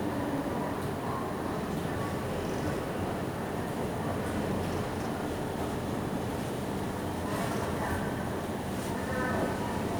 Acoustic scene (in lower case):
subway station